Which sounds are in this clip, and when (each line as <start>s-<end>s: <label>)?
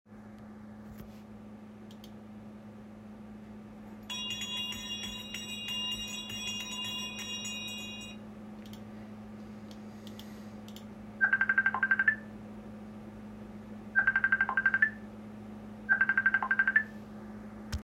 4.1s-8.2s: bell ringing
11.2s-12.2s: phone ringing
13.9s-14.9s: phone ringing
15.9s-16.9s: phone ringing